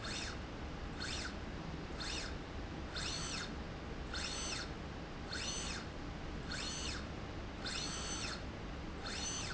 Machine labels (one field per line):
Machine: slide rail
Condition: normal